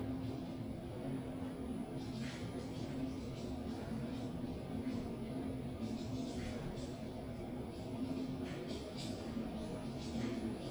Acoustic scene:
elevator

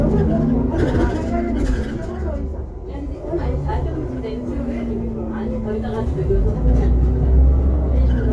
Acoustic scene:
bus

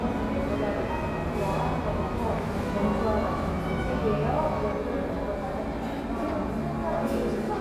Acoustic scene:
cafe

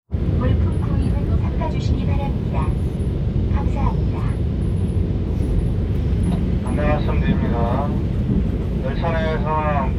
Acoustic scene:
subway train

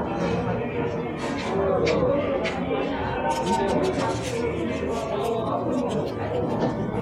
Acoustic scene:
cafe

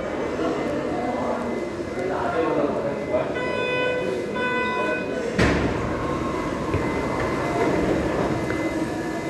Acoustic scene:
subway station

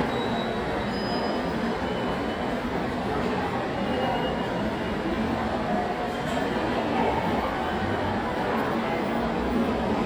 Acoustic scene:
subway station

